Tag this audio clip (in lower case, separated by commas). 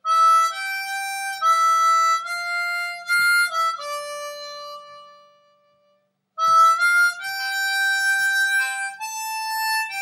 music